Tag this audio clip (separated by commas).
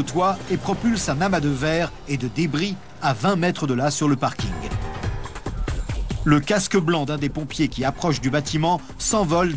Music, Speech